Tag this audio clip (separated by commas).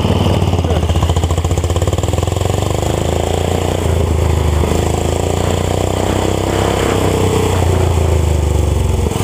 Motorcycle, Motorboat